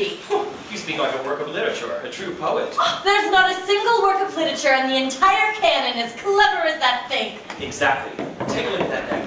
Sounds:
Speech

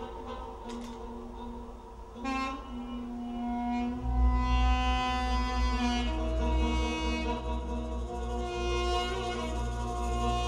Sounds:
Music

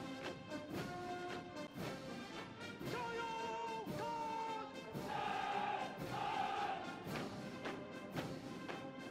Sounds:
people marching

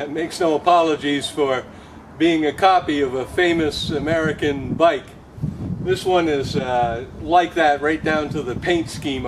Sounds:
Speech

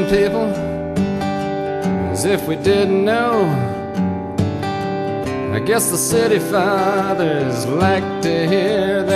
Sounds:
Music

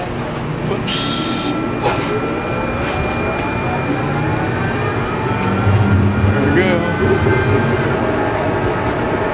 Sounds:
Speech, Rail transport, Vehicle, Train

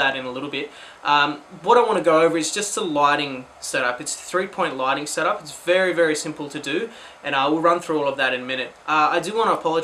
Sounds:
Speech

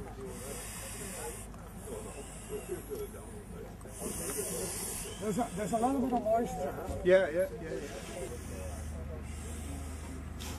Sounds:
Fire, Speech

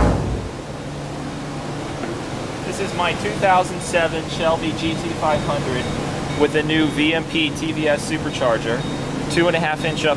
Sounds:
Speech

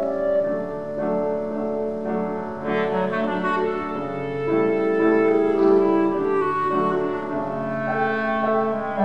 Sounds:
playing clarinet, Classical music, Music, Clarinet, Musical instrument

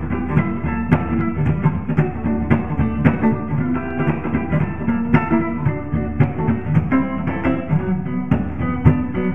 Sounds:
Music

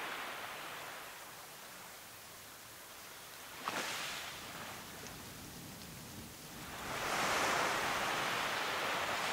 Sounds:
outside, rural or natural

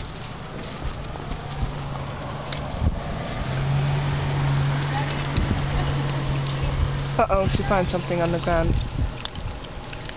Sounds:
Vehicle, Speech

